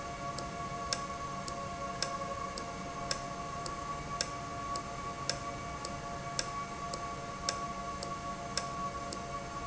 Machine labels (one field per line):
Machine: valve